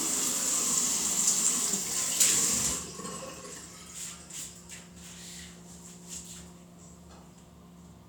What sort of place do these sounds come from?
restroom